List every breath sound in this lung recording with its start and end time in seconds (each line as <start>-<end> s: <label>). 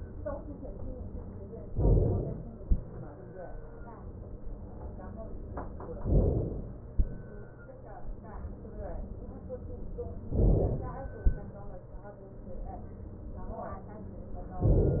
1.75-2.63 s: inhalation
6.02-6.90 s: inhalation
10.36-11.24 s: inhalation